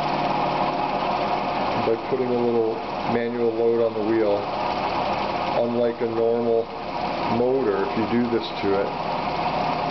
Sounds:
Engine, Speech

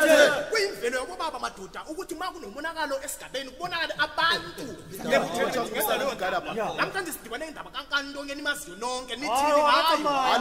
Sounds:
Speech

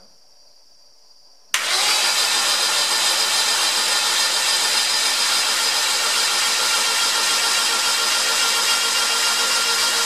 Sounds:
car engine starting

